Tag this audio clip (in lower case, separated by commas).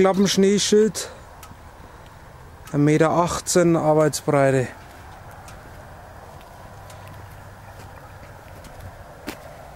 speech